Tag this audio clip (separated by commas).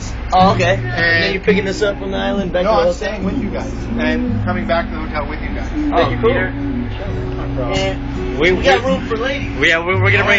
Music, Speech